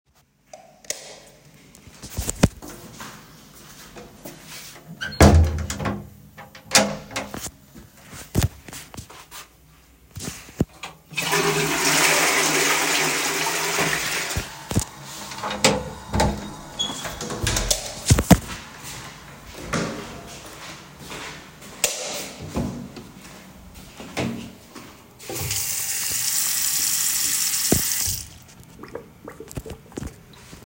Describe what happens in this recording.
went to the bathroom then straight to wash my hands as the sink is in another room